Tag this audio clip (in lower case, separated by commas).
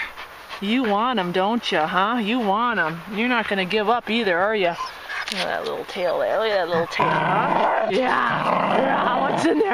dog, speech, domestic animals, outside, rural or natural, animal